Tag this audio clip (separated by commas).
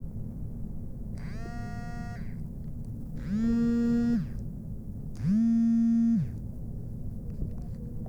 Telephone, Alarm